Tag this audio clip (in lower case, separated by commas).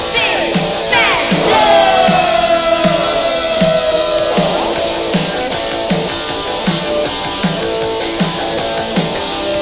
music